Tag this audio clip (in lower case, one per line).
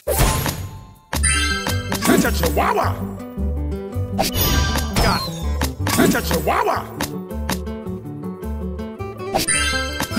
thwack